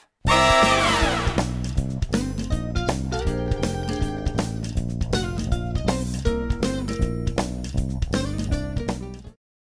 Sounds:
Music

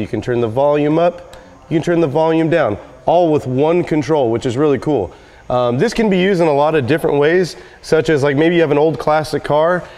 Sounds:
Speech

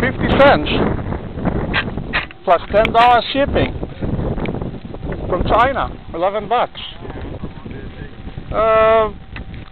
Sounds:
Speech

